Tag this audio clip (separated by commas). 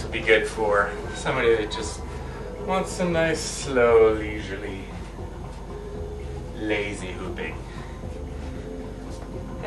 Music, Speech